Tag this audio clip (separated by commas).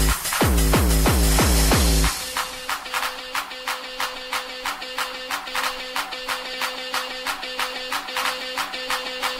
Music, House music